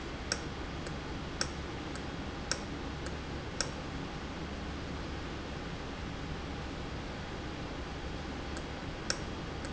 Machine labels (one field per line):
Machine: valve